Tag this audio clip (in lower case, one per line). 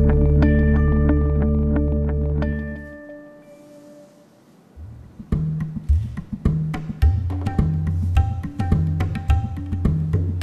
music